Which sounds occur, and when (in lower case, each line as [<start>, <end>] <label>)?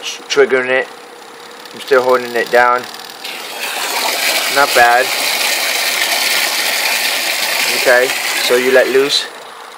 [0.00, 9.75] mechanisms
[3.20, 9.08] pump (liquid)